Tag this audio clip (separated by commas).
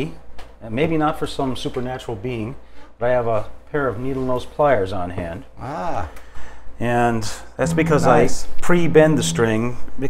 Strum, Musical instrument, Speech, Plucked string instrument, Guitar, Music